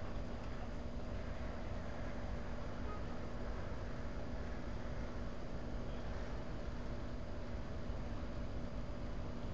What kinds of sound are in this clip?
background noise